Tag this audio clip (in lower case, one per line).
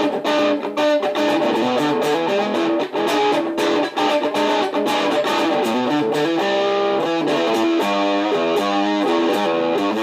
distortion